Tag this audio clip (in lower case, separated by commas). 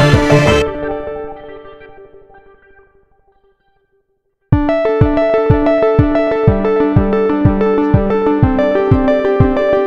synthesizer, music